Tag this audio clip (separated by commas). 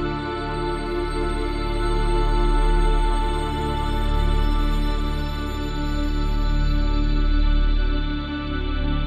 Background music, Music